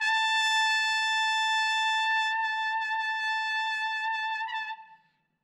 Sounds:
Musical instrument, Music, Brass instrument

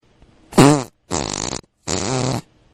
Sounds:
Fart

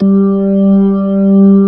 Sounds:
Music, Keyboard (musical), Musical instrument, Organ

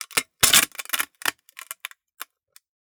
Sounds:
Crushing

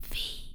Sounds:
Human voice, Whispering

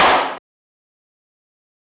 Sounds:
Hands, Clapping

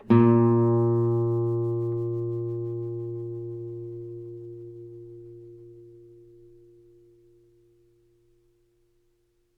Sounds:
Guitar, Plucked string instrument, Musical instrument, Music

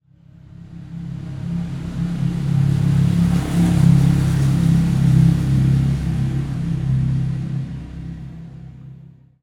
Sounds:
Engine, Motor vehicle (road), Vehicle, Motorcycle

